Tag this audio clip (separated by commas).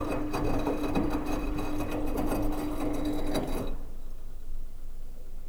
Engine